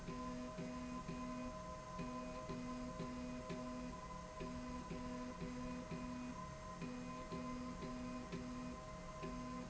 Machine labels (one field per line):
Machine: slide rail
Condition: normal